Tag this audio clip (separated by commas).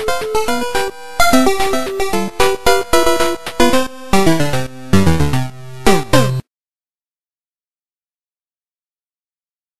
Music, Soundtrack music